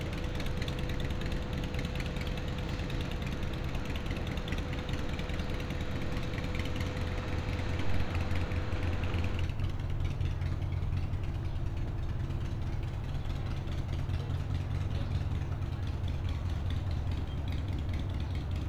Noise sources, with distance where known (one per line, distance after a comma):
medium-sounding engine